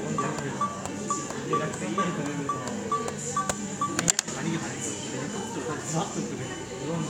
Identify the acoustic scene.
cafe